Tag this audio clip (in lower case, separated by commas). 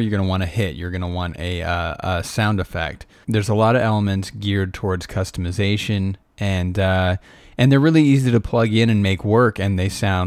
speech